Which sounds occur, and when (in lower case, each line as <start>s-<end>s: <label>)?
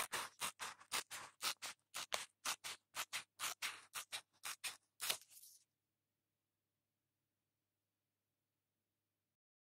0.0s-9.6s: background noise
0.0s-0.4s: sound effect
0.5s-0.9s: sound effect
1.0s-1.3s: sound effect
1.4s-1.5s: sound effect
1.6s-1.6s: sound effect
1.9s-2.0s: sound effect
2.1s-2.2s: sound effect
2.4s-2.5s: sound effect
2.6s-2.7s: sound effect
2.9s-3.0s: sound effect
3.1s-3.2s: sound effect
3.3s-3.4s: sound effect
3.6s-4.0s: sound effect
4.1s-4.2s: sound effect
4.4s-4.5s: sound effect
4.6s-4.7s: sound effect
5.0s-5.5s: sound effect